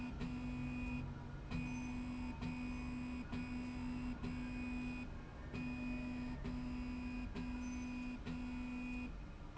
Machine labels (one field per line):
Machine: slide rail